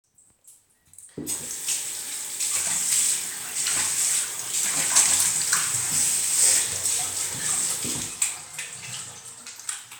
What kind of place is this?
restroom